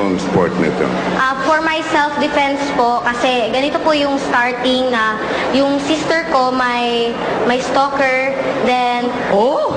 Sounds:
Speech

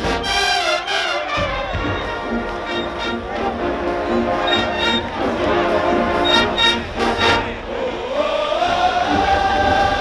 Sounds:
people marching

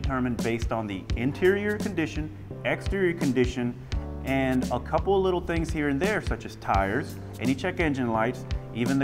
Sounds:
Speech, Music

